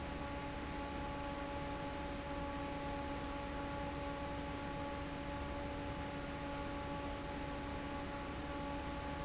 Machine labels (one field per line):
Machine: fan